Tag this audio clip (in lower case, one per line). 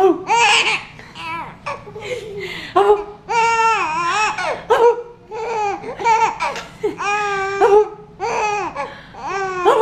people giggling